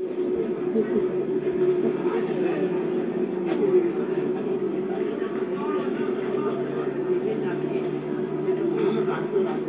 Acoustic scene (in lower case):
park